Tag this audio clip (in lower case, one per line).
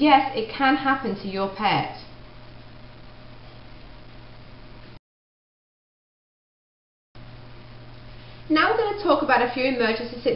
speech